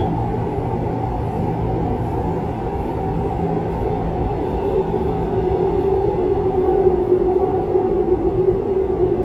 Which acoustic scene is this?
subway train